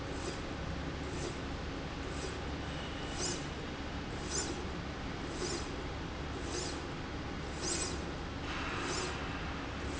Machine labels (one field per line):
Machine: slide rail